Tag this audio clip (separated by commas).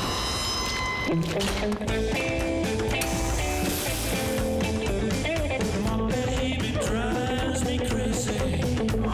Music